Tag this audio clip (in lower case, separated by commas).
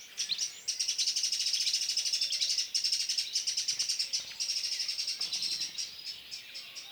animal, wild animals, bird